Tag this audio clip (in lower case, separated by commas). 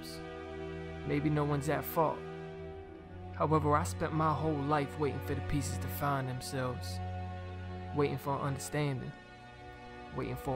speech, music